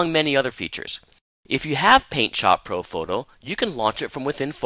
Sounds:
Speech

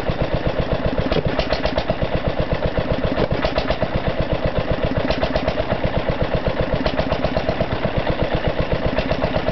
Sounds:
Heavy engine (low frequency), Engine, Medium engine (mid frequency), Idling

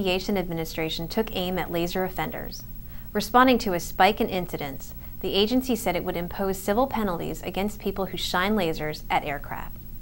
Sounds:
Speech

